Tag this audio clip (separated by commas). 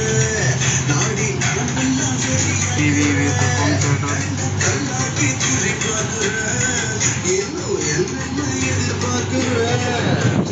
Speech, Music